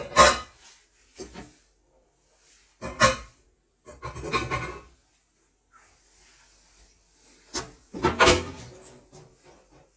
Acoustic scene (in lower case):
kitchen